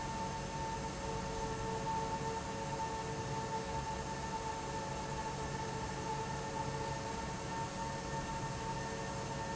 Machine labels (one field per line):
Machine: fan